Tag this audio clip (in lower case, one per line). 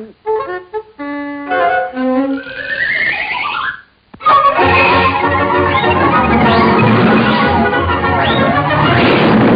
music